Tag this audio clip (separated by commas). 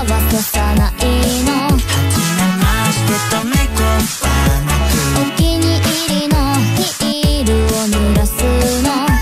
Music